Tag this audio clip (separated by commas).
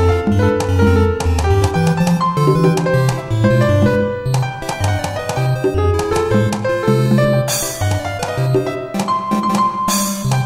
Music, Video game music